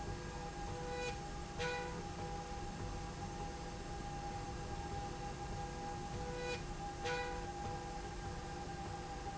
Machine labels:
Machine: slide rail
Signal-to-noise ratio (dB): 0 dB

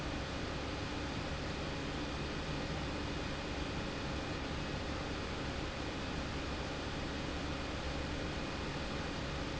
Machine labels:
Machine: pump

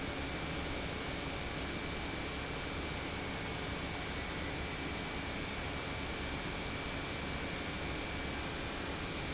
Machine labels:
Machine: pump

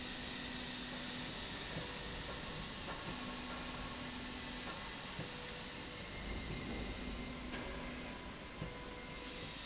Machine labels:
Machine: slide rail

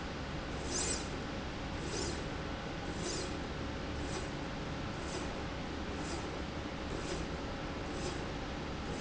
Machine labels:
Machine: slide rail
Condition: normal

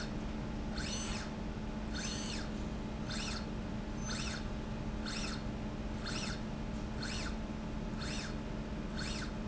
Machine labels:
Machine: slide rail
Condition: normal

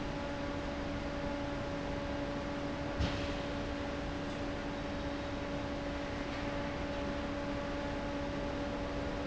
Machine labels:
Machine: fan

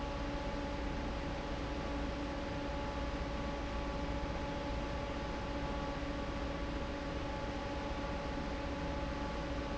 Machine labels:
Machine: fan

